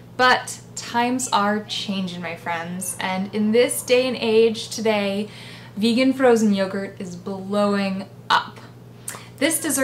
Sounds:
Speech

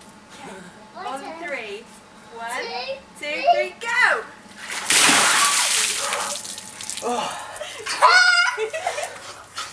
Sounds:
Speech

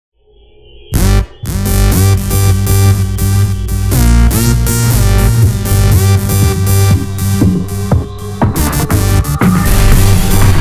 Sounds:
Throbbing

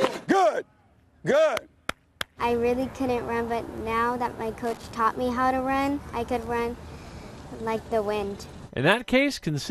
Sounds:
Speech

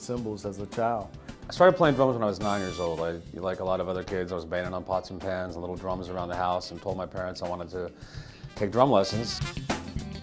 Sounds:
Speech, Music

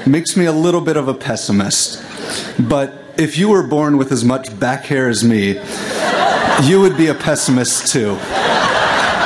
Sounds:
Speech, man speaking

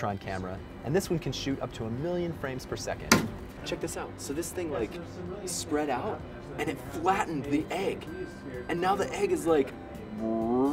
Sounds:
Speech, Music

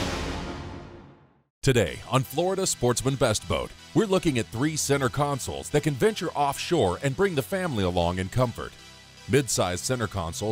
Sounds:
Music, Speech

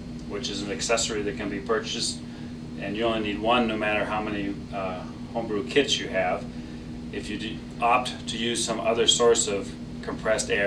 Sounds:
Speech

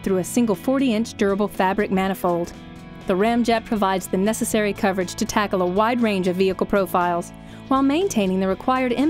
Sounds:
Music, Speech

